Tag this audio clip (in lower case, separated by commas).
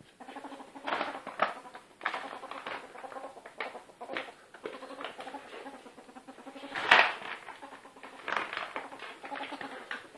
ferret dooking